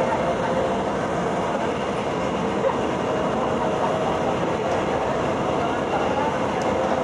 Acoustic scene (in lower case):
subway train